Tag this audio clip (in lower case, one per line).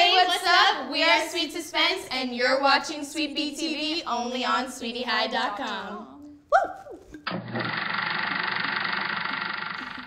inside a small room
speech